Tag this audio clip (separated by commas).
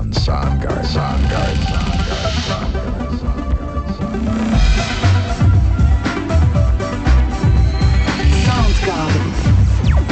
Music, Speech